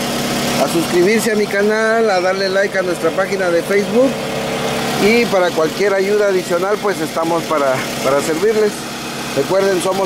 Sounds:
car engine idling

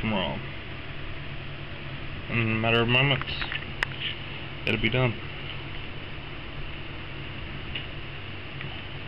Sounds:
Speech

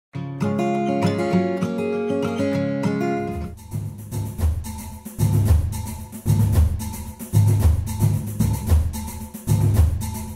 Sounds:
Percussion

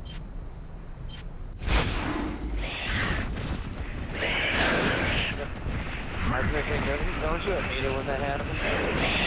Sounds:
Speech

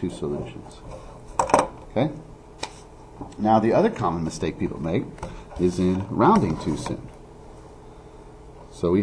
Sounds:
Speech

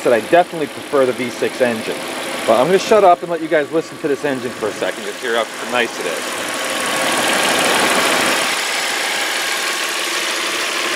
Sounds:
Vibration, Idling, Vehicle

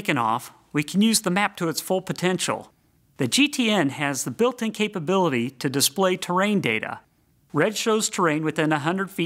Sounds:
Speech

